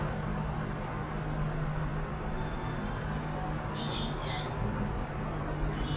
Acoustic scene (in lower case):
elevator